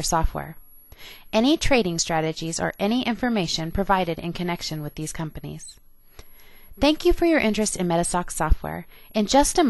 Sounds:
Speech

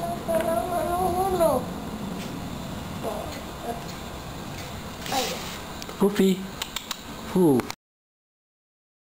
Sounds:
Speech

